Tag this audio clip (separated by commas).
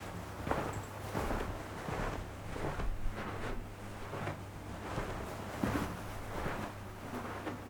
footsteps